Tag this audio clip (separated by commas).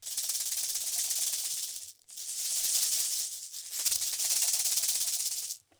Percussion, Rattle (instrument), Music, Rattle, Musical instrument